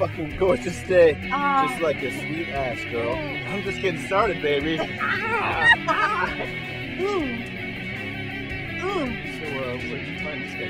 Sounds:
Speech, Music

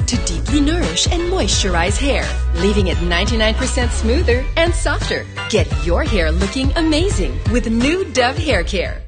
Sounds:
Music, Speech

